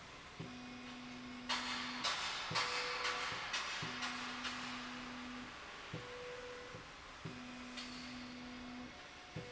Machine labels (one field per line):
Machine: slide rail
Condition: normal